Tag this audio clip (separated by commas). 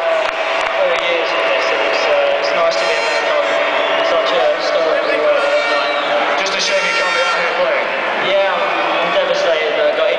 man speaking, Speech, Conversation